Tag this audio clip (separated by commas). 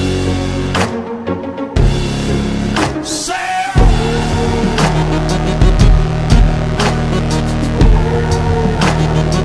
Music